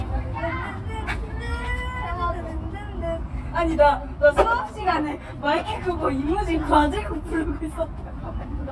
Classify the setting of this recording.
park